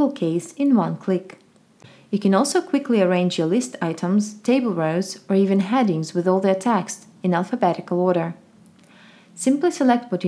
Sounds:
speech

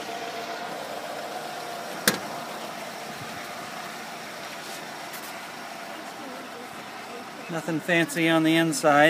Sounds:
speech, outside, urban or man-made, vehicle

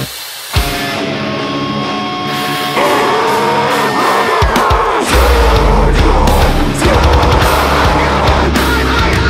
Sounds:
independent music, scary music, music

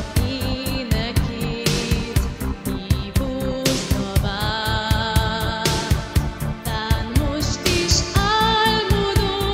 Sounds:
female singing, music

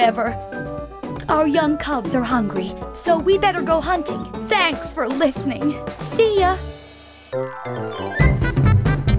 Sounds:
music, speech

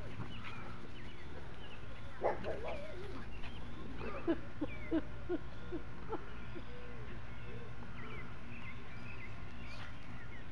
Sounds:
domestic animals, speech, animal, dog, outside, rural or natural

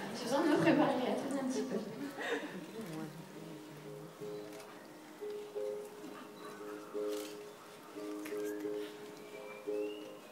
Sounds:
speech, music

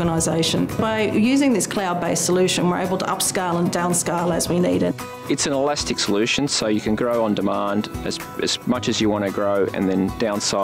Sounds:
speech, music

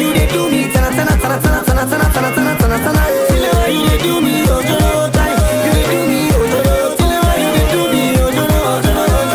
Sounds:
music of africa, hip hop music, music, singing

